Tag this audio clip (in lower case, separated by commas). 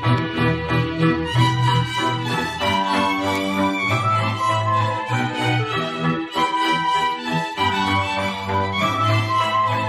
music